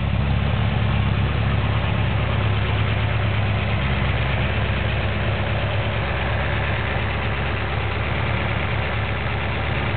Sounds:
engine, medium engine (mid frequency)

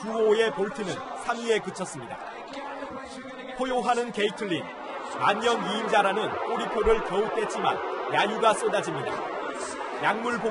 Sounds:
people booing

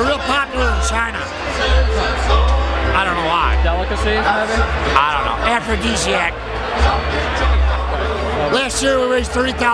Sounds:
speech, music

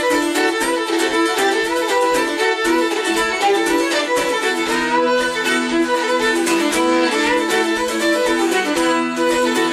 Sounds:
violin, music, musical instrument

